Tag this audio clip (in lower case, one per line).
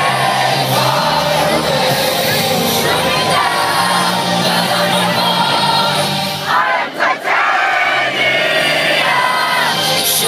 speech
music